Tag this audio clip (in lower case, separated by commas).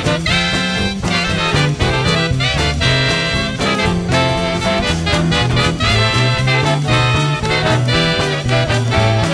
music, swing music